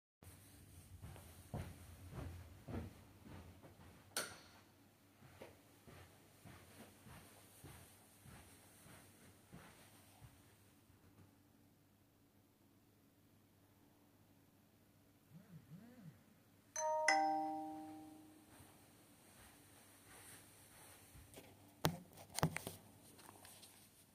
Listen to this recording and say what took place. Walking to go turn on the rights and then come back and then there is a notification on the phone